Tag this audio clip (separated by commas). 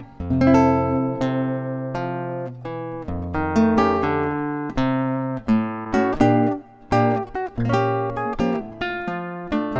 Guitar, Musical instrument, Music, Strum, Plucked string instrument